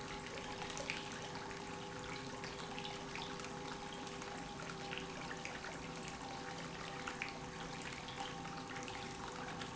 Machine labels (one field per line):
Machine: pump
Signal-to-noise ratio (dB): 6 dB